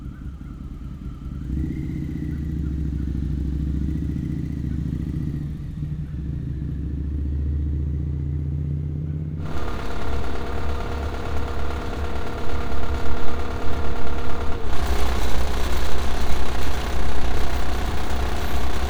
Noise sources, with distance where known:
engine of unclear size

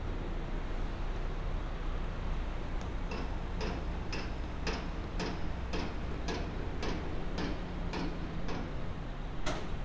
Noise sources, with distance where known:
pile driver, near

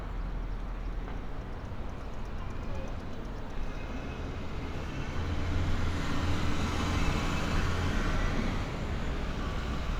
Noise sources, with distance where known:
medium-sounding engine

